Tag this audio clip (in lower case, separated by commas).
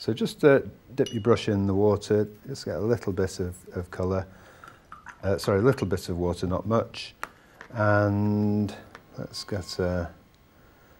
speech, water